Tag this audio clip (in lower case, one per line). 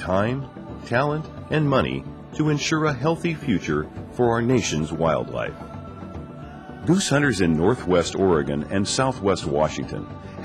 speech
music